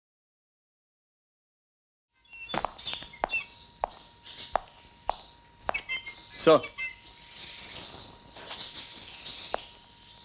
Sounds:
tweet, bird, bird song

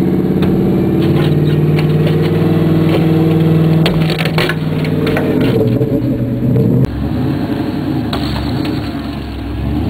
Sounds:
revving, vehicle, engine, idling, car

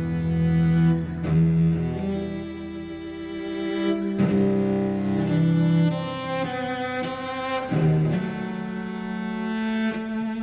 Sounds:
music, fiddle, double bass, bowed string instrument, musical instrument, cello

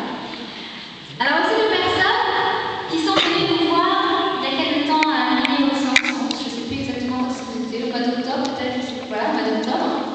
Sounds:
speech

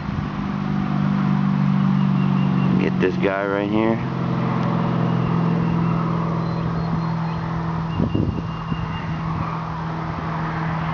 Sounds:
speech

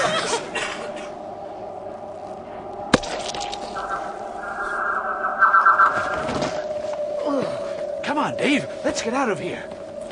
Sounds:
speech, music

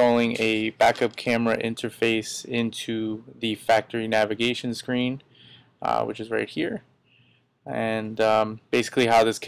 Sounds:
speech

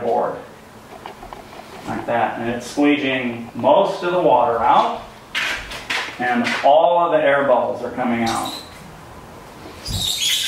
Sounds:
speech

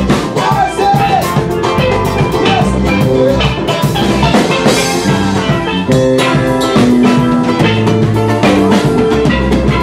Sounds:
playing steelpan

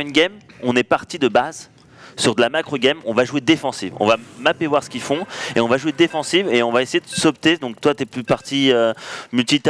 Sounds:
speech

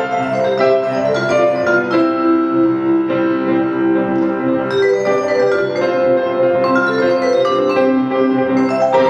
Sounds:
marimba, vibraphone, musical instrument, piano, music, keyboard (musical), percussion

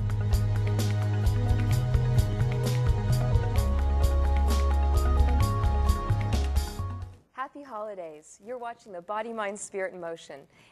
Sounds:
music, speech

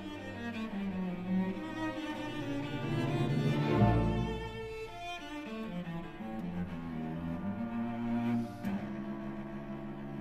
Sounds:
cello, music, bowed string instrument, musical instrument, orchestra

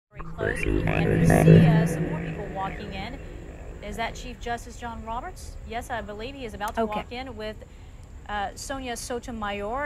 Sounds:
inside a public space, speech, music

